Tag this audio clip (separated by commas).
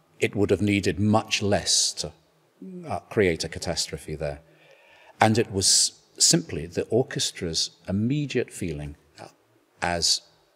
Speech